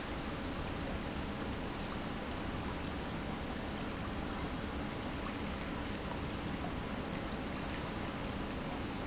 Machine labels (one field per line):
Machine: pump